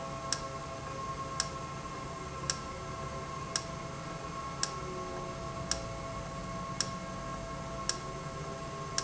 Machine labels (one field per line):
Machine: valve